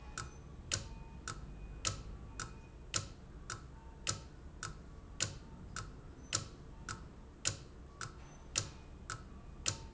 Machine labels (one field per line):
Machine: valve